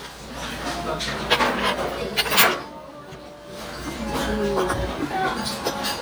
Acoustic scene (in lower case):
restaurant